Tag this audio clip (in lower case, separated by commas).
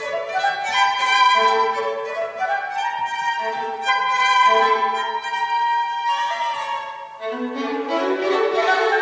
flute, fiddle, music, musical instrument